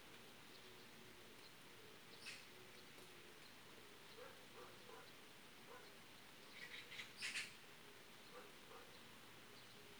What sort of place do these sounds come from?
park